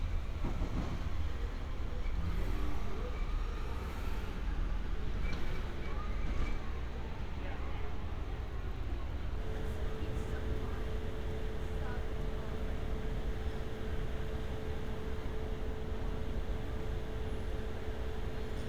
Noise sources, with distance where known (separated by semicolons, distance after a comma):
unidentified human voice, far